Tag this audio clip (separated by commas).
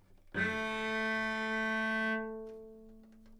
Music, Musical instrument, Bowed string instrument